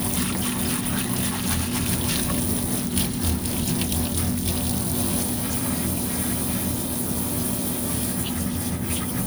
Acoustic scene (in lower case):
kitchen